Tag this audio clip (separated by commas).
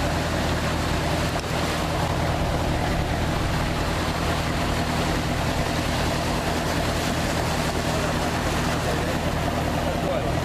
Speech